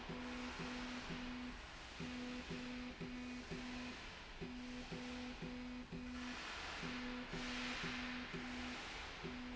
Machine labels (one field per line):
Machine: slide rail